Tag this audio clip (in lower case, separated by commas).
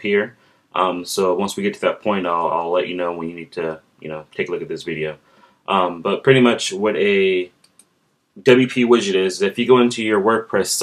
speech